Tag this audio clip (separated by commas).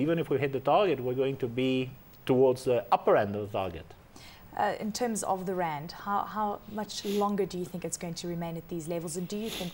Speech